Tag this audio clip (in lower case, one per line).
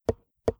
tap